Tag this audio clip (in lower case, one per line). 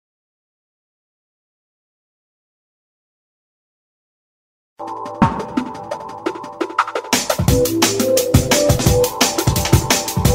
music